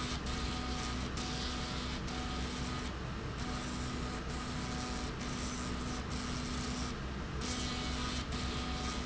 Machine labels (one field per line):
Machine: slide rail